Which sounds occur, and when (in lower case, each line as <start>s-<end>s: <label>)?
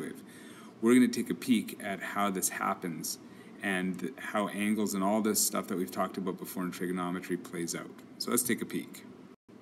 0.0s-0.1s: male speech
0.0s-9.4s: mechanisms
0.2s-0.7s: breathing
0.8s-3.2s: male speech
3.2s-3.5s: breathing
3.5s-9.0s: male speech
9.5s-9.6s: mechanisms